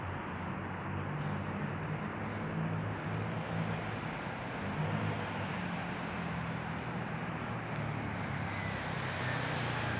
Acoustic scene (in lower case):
street